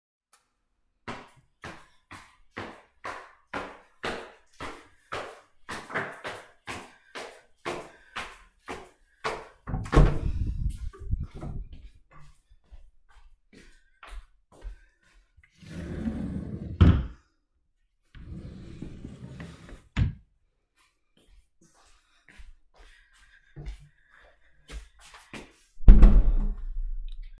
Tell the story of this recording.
I turned on the light. I went upstairs. I opened the door. I went to the wardrobe. I open and closed it. I returned to the door and closed the door.